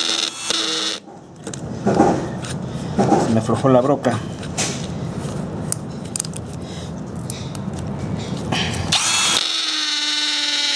A man speaking and a drill motor whirring